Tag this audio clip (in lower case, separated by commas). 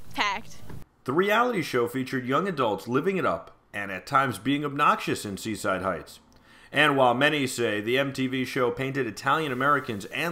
speech